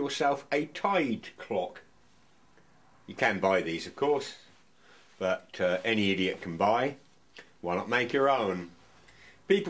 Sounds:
Speech

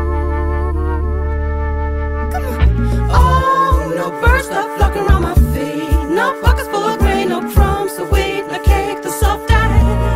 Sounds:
Rhythm and blues, Music

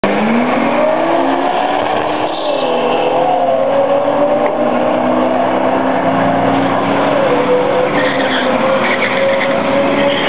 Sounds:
Car, Vehicle

